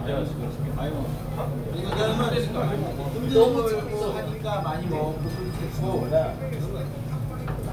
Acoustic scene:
crowded indoor space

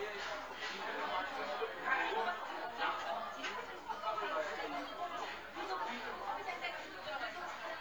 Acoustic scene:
crowded indoor space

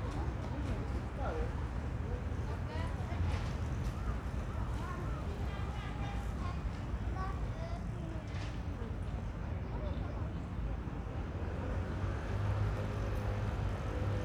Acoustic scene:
residential area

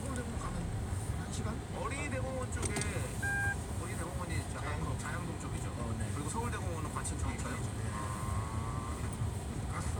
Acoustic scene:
car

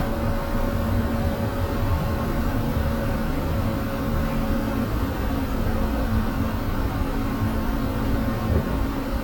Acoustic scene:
bus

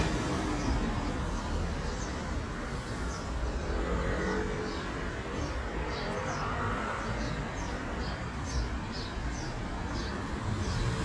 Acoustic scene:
residential area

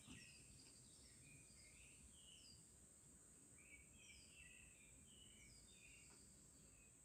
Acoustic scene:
park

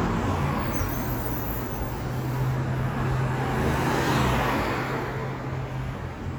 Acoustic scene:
street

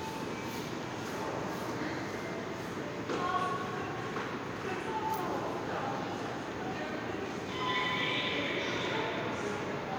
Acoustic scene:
subway station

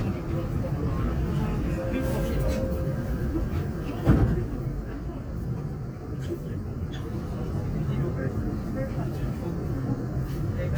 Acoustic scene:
subway train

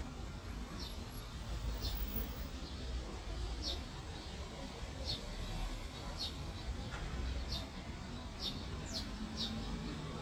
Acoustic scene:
residential area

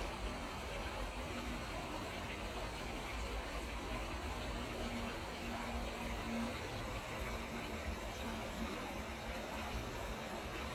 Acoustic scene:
park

